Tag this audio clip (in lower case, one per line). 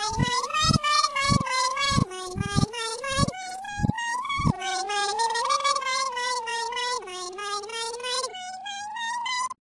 domestic animals
cat